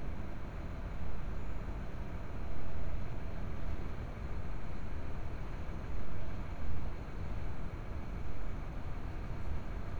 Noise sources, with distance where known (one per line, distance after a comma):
background noise